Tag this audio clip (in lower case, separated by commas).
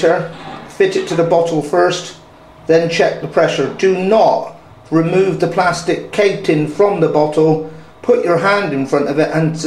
speech